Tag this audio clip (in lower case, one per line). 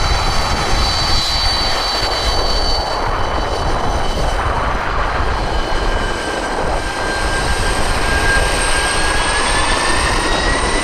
outside, urban or man-made
aircraft engine
aircraft
airplane
vehicle